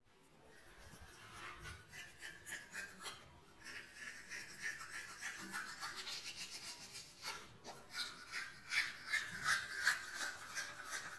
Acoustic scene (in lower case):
restroom